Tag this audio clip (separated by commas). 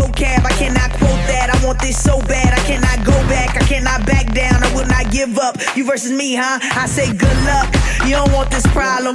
Music